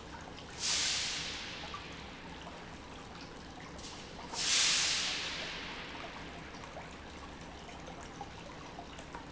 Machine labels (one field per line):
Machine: pump